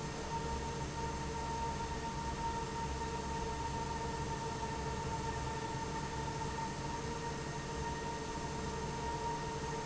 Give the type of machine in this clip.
fan